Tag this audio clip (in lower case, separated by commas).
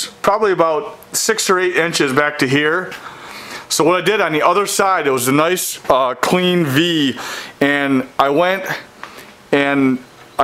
speech